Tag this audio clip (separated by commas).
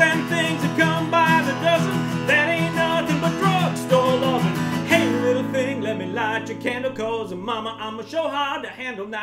Musical instrument, Acoustic guitar, Music